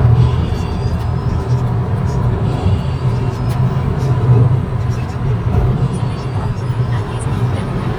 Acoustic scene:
car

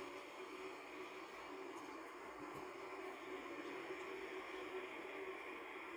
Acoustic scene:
car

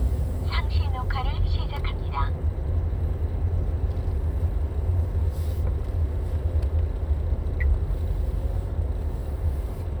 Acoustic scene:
car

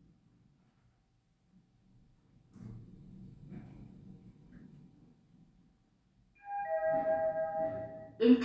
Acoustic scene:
elevator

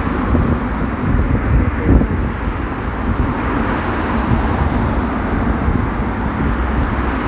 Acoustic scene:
street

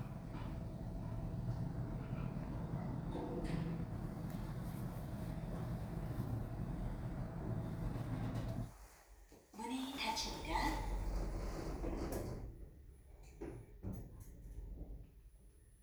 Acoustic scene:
elevator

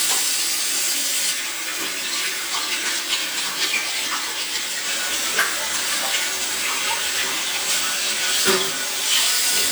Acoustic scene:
restroom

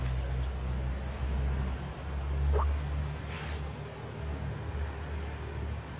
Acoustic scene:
residential area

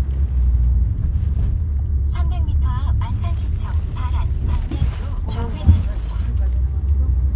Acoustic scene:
car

